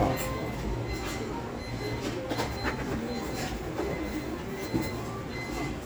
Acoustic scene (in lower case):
restaurant